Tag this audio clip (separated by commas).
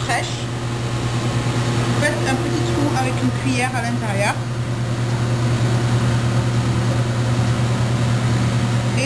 Speech, inside a small room, Microwave oven